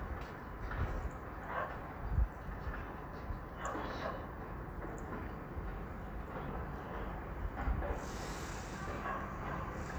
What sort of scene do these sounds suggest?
residential area